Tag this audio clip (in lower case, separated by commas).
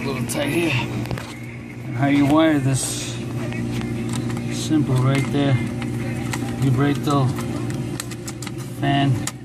music, speech